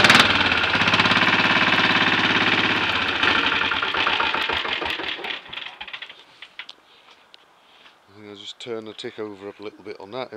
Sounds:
motorcycle, speech

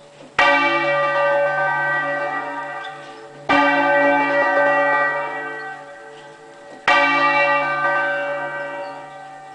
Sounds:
music, bell

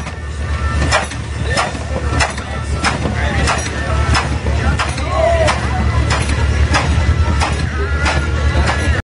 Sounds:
speech, music

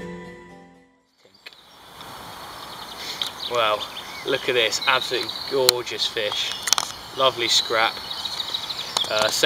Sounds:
animal

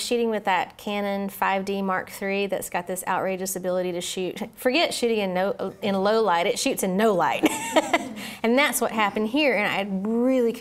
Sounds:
speech

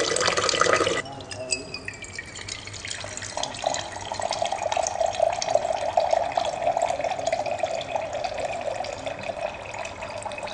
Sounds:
water

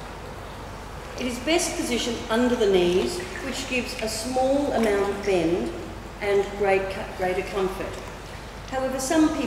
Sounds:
speech

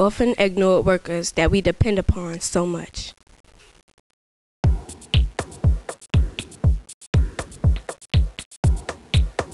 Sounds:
speech, music

